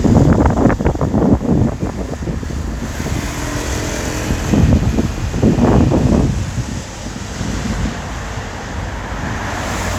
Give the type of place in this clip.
street